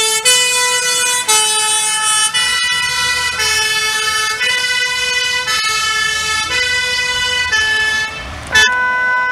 Emergency vehicles sirens passing by